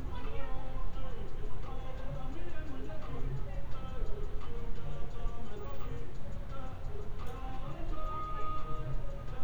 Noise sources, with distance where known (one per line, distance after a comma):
music from an unclear source, far